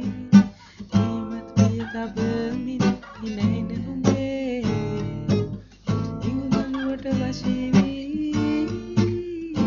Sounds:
acoustic guitar, music, strum, musical instrument, guitar, plucked string instrument

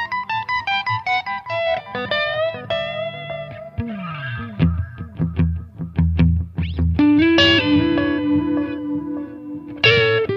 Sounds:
effects unit, guitar, plucked string instrument, music, musical instrument

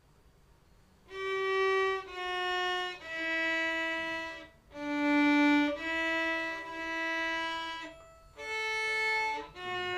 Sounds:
musical instrument, violin, music

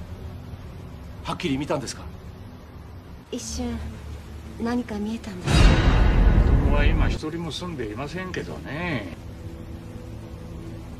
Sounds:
music, speech

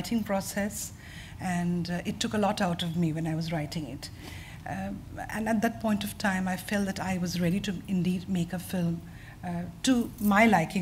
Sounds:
inside a small room, speech

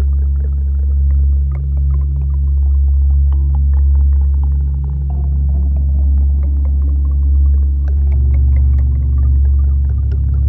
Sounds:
music

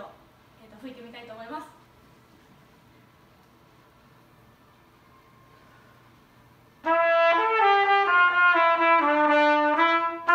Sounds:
playing cornet

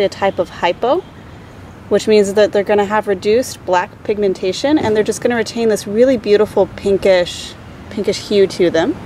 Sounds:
outside, rural or natural, speech

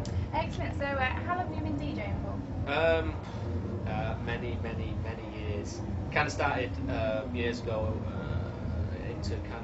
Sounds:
speech

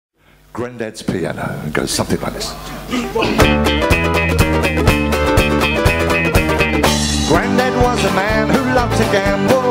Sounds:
orchestra, music, jazz, musical instrument

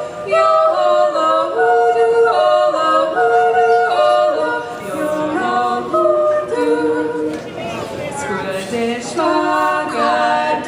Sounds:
singing, a capella, speech

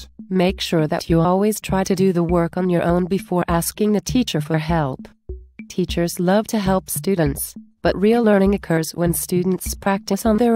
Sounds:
percussion

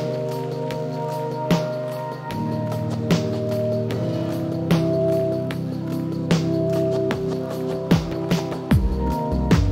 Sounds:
music

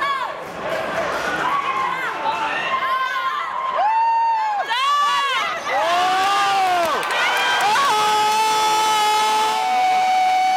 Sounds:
speech

